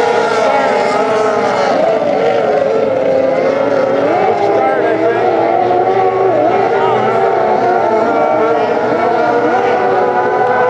Several vehicles move fast